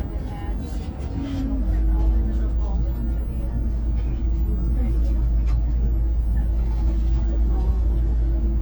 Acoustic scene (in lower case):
bus